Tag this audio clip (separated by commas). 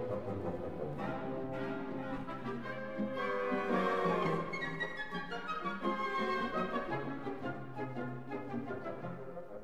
Music